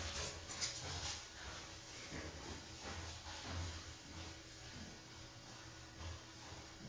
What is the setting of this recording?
elevator